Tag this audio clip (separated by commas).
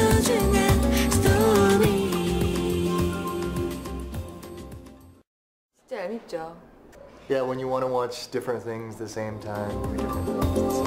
Music, Female speech, Singing